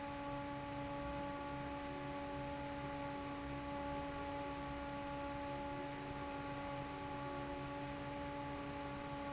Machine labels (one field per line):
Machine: fan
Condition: normal